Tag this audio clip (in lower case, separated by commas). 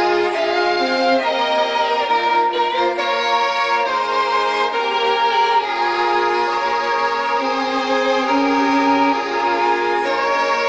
music, fiddle, musical instrument